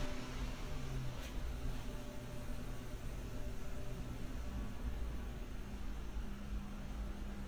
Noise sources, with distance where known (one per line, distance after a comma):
small-sounding engine